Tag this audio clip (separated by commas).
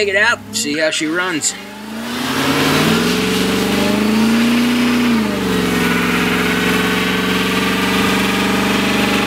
Vehicle, Truck, Engine, Speech, outside, rural or natural